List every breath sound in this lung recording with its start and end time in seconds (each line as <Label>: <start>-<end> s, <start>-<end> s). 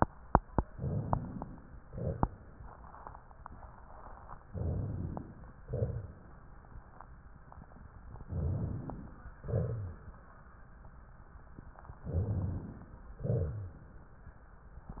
Inhalation: 0.69-1.82 s, 4.50-5.61 s, 8.27-9.40 s, 12.05-13.16 s
Exhalation: 1.83-3.17 s, 5.63-6.62 s, 9.41-10.42 s, 13.27-14.01 s
Rhonchi: 4.50-5.24 s, 9.41-9.97 s, 12.05-12.68 s, 13.20-13.79 s